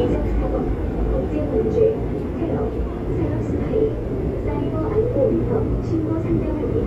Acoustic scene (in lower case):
subway train